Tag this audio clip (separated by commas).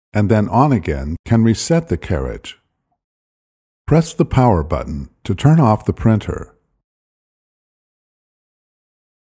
Speech